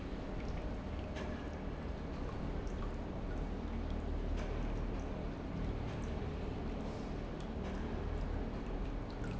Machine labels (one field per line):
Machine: pump